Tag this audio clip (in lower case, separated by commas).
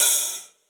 percussion, musical instrument, cymbal, hi-hat, music